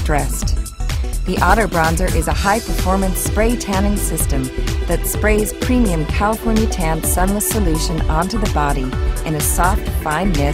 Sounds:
Music, Speech

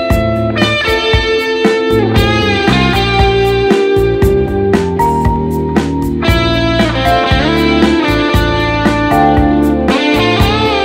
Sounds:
Plucked string instrument, Musical instrument, Strum, Guitar, Music

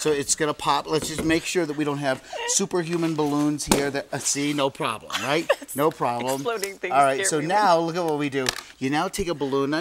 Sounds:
Speech

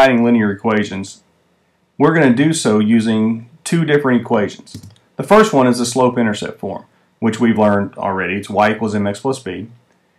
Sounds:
Speech

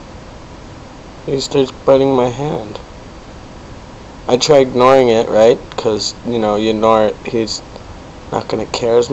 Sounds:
Speech

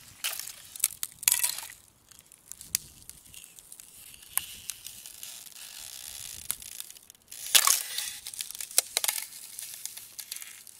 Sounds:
ice cracking

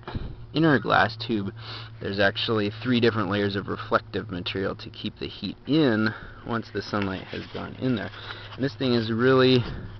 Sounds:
Speech

